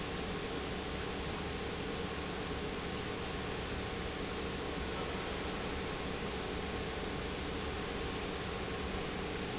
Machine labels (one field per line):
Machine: pump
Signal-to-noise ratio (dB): -6 dB